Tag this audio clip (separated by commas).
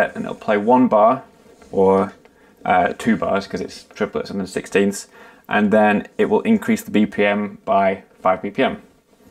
inside a small room, Speech